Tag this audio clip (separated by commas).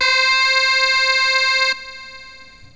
Keyboard (musical), Music, Musical instrument